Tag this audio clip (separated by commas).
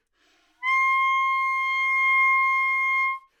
Musical instrument, Music, woodwind instrument